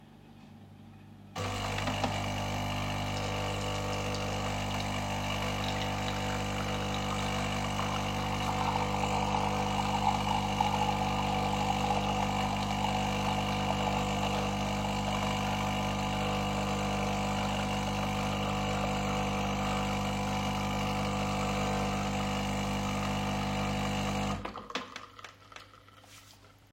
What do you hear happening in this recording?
A coffee machine is running in the kitchen. The coffee is being poured into a cup, and the dripping sound is audible throughout the scene.